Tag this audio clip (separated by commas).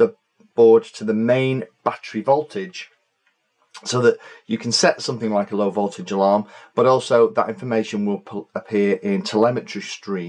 Speech